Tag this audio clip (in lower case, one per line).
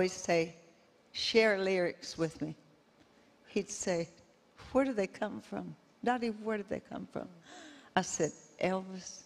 speech